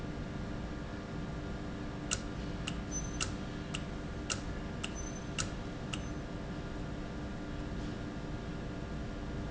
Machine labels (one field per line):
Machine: valve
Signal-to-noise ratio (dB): -6 dB